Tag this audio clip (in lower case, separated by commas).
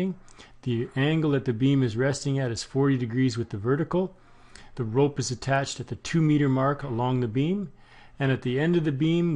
speech